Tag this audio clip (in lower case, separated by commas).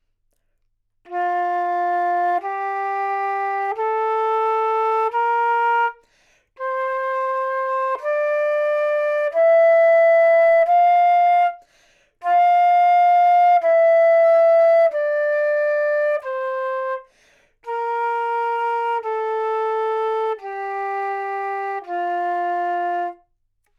musical instrument, music, wind instrument